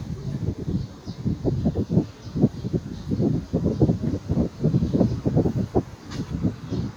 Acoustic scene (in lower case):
park